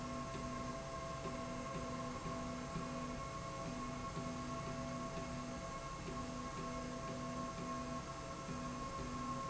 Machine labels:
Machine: slide rail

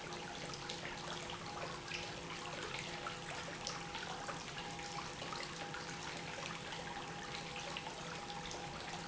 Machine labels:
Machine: pump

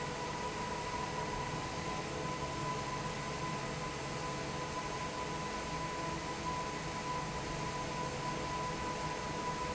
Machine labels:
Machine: fan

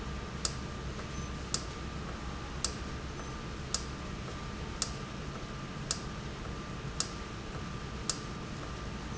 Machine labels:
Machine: valve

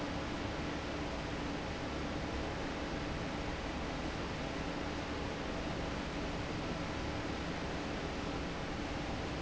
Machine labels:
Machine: fan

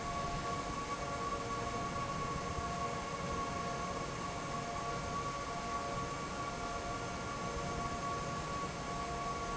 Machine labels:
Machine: fan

